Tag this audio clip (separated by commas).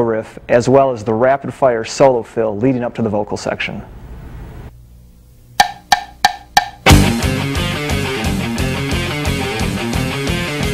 Music, Strum, Speech, Musical instrument, Electric guitar, Plucked string instrument, Guitar